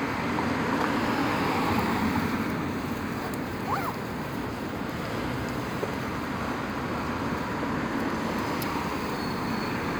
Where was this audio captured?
on a street